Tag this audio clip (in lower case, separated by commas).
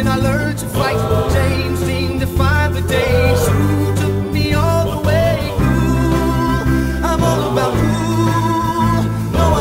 music